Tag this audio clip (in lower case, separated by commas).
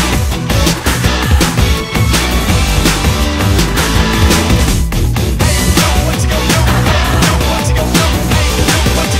music